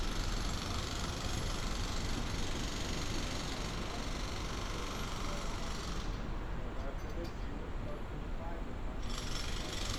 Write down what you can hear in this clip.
jackhammer, person or small group talking